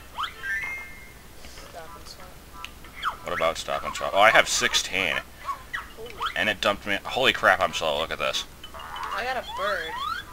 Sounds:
speech

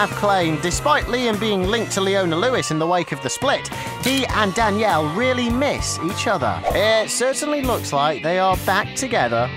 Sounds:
music
speech

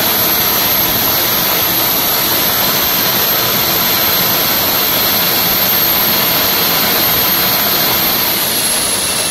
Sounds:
jet engine

